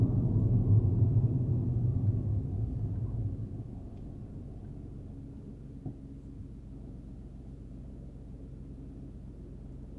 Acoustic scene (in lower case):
car